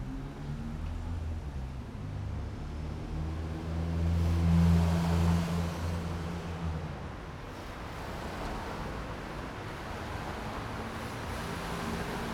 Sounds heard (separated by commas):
car engine accelerating, car, car wheels rolling